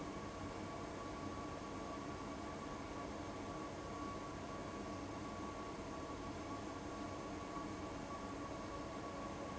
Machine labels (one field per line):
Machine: fan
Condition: abnormal